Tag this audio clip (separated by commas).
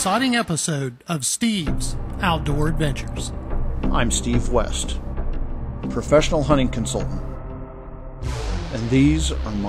Music, Speech